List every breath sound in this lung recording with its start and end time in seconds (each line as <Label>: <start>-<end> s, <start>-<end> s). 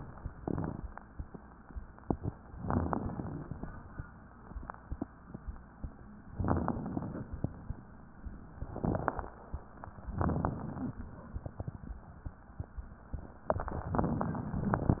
Inhalation: 2.64-4.06 s, 6.33-7.50 s, 10.06-10.93 s
Crackles: 2.64-4.06 s, 6.33-7.50 s, 10.06-10.93 s